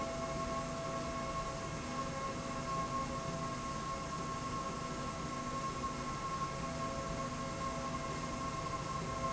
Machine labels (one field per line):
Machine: slide rail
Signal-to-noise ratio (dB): -6 dB